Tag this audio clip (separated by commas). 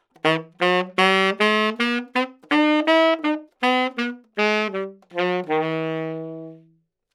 Musical instrument, Wind instrument, Music